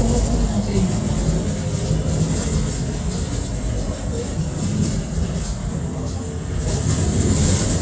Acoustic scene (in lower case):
bus